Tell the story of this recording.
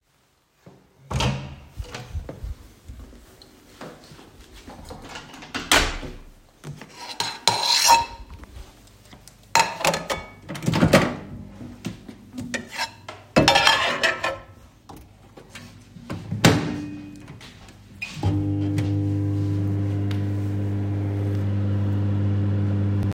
I walked into the kitchen and closed the door behind me. I gathered some dishes and silverware from the counter. Then, I opened the microwave to heat up my food.